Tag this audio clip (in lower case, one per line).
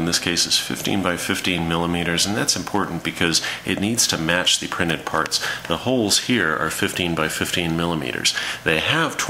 speech